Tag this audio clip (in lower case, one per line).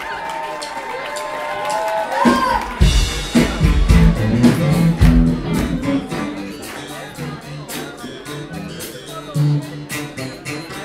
speech
exciting music
funk
pop music
music